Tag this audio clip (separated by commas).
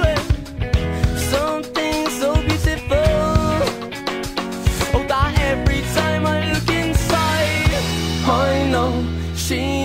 Independent music